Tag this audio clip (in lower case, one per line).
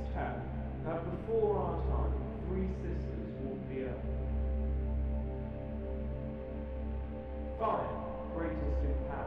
speech
music